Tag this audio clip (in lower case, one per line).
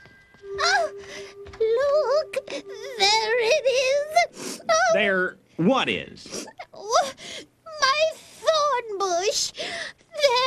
speech
music